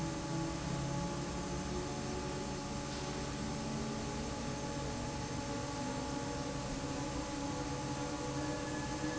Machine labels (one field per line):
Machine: fan